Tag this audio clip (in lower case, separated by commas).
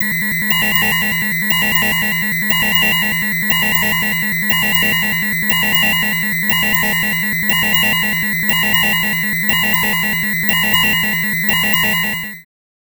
alarm